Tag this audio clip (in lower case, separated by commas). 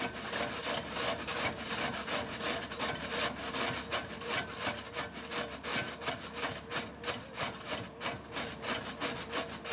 vehicle, outside, urban or man-made